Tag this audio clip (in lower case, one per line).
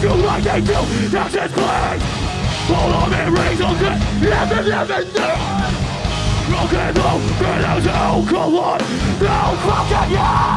music